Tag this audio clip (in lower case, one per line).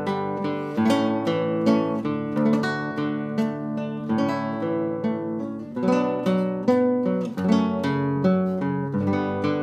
electric guitar
strum
music
acoustic guitar
guitar
musical instrument
plucked string instrument